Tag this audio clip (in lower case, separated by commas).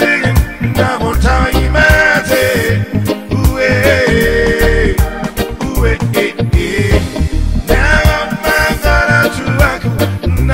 music